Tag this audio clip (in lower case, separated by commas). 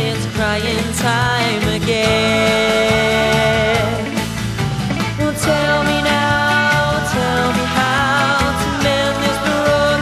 music